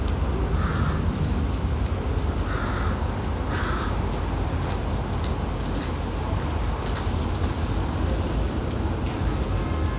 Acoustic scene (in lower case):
residential area